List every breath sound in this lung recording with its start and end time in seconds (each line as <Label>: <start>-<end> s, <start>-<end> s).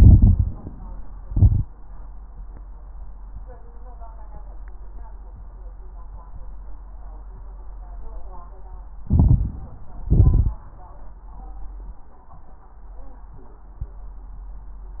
Inhalation: 0.00-0.65 s, 9.04-10.07 s
Exhalation: 1.18-1.67 s, 10.06-10.63 s
Crackles: 0.00-0.65 s, 1.18-1.67 s, 9.03-10.05 s, 10.06-10.63 s